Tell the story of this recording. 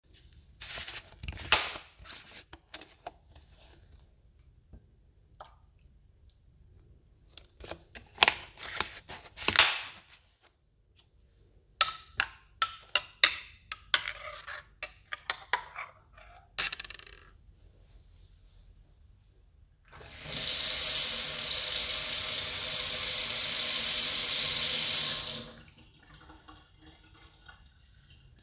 I opend the milk, poured it in my coffee and closed the milk carton again. I stirred my coffee and rinsed off the spoon.